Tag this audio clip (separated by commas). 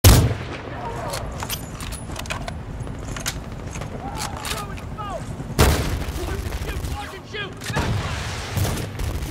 Fusillade